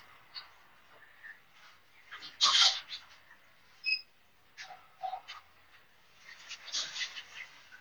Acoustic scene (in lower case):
elevator